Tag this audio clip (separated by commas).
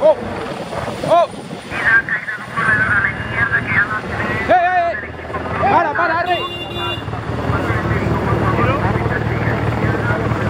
Speech